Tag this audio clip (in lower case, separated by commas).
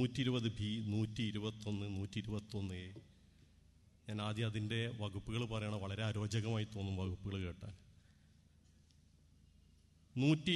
speech, man speaking, monologue